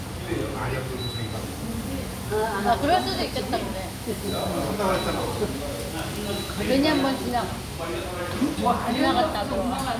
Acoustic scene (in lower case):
restaurant